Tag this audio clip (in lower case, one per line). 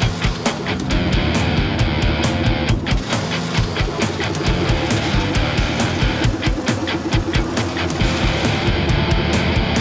truck
vehicle
music